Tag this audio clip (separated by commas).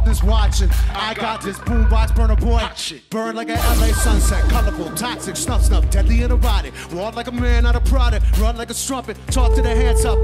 Music